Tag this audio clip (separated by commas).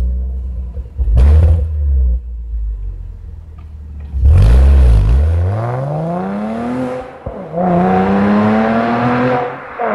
Roll